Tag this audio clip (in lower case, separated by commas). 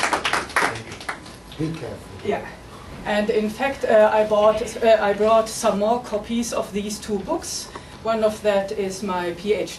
speech, woman speaking